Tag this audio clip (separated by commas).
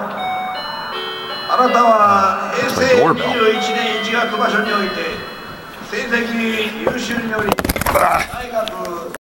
Speech